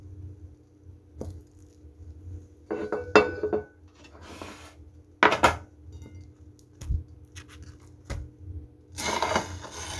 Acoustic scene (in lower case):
kitchen